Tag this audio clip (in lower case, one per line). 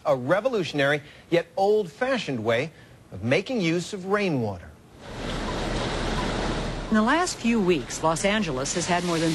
speech